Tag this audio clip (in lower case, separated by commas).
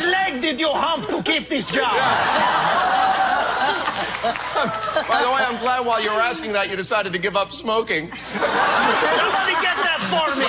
speech